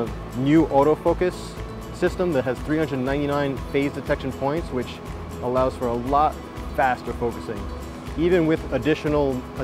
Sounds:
Speech, Music

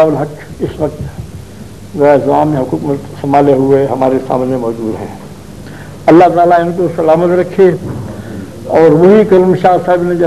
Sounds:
Speech, man speaking

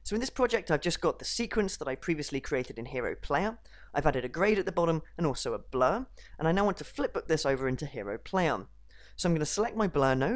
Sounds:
Narration

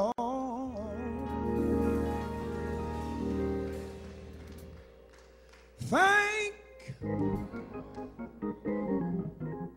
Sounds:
Music, Male singing

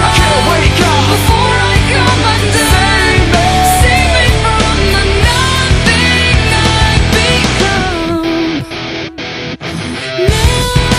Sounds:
Music

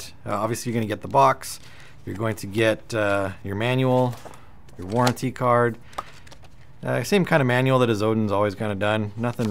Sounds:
Speech

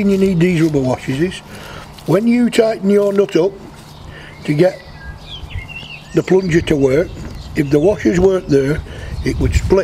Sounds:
Bird

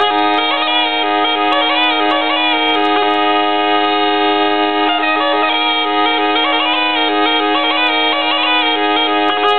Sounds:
Bagpipes, woodwind instrument

